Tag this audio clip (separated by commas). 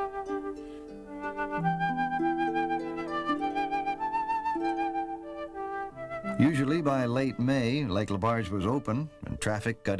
Flute, Wind instrument